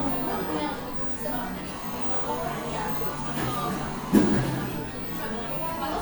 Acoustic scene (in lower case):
cafe